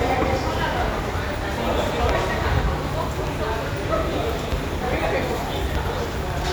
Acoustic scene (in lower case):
subway station